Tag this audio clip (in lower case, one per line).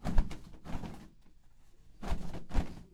wild animals
bird
animal